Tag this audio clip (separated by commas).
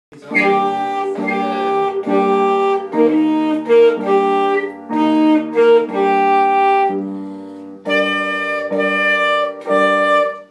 playing saxophone